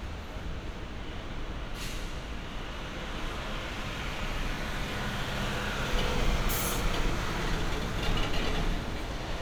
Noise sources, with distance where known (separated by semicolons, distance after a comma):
unidentified impact machinery, near